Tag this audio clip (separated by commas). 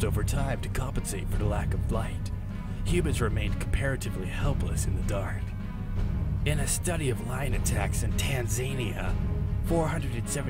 Music, Speech